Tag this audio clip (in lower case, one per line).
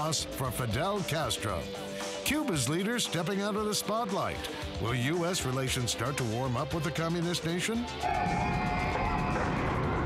speech
music